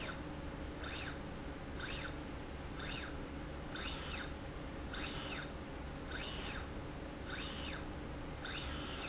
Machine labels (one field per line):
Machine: slide rail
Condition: normal